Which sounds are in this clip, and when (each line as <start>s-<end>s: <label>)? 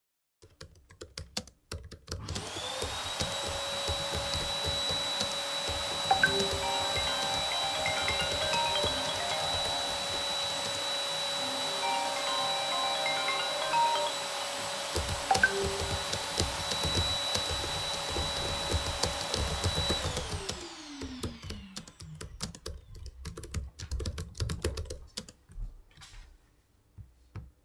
0.2s-11.1s: keyboard typing
2.0s-23.3s: vacuum cleaner
6.0s-10.3s: phone ringing
11.2s-14.2s: phone ringing
14.8s-25.9s: keyboard typing
15.2s-15.6s: phone ringing